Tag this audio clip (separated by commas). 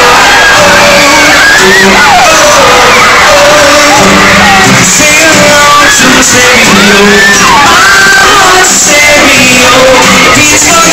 Music, Singing, Crowd